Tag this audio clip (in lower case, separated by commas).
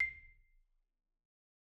mallet percussion, music, musical instrument, xylophone, percussion